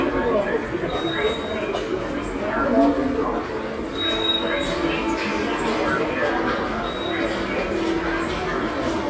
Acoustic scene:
subway station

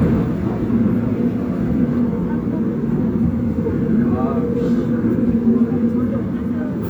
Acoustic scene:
subway train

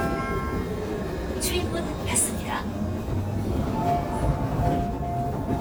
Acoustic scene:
subway train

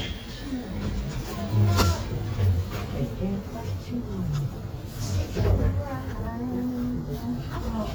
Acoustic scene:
elevator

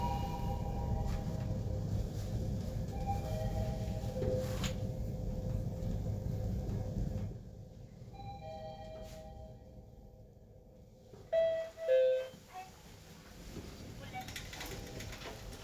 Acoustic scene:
elevator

